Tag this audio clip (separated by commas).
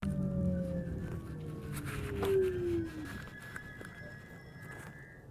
Vehicle, Rail transport, Train